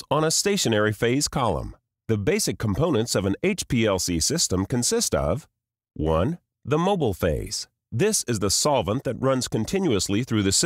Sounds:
speech

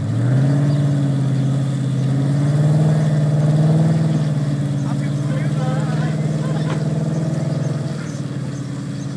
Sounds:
speech
vehicle
car

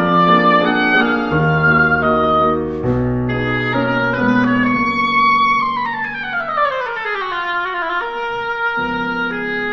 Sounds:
playing oboe

